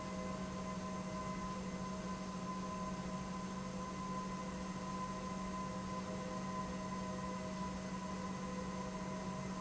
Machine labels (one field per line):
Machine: pump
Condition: normal